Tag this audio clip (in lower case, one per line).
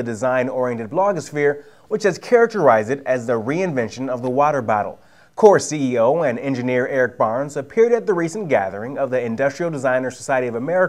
speech